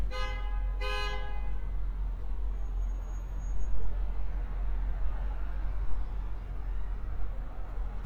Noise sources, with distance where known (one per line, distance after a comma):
car horn, far
unidentified human voice, far